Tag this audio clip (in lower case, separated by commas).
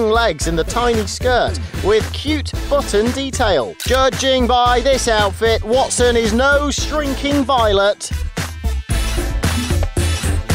music, speech